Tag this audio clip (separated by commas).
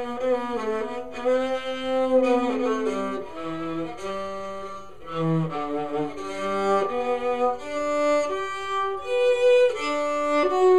Music, Musical instrument, Bowed string instrument, Plucked string instrument